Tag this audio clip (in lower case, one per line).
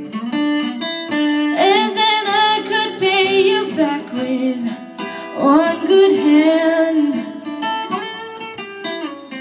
plucked string instrument
singing
guitar
music
female singing